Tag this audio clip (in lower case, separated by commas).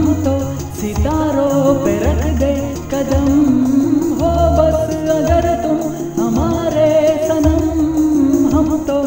music, music of bollywood